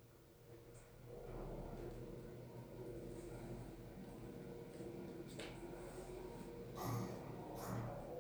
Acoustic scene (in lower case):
elevator